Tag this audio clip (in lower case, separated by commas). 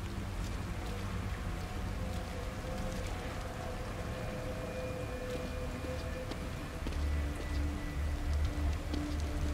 people running, run